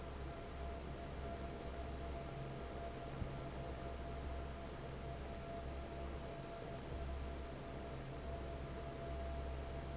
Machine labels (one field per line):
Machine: fan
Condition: normal